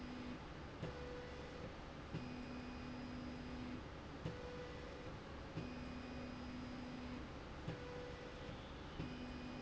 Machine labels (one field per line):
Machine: slide rail